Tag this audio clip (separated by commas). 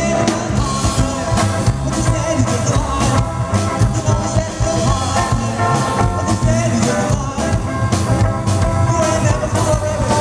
Music, Drum, Drum kit, Musical instrument